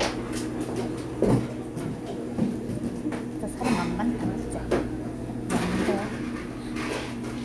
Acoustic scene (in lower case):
cafe